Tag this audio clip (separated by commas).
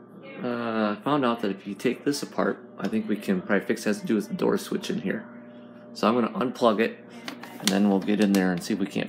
Speech